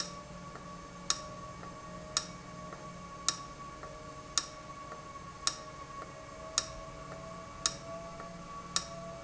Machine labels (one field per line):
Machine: valve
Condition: abnormal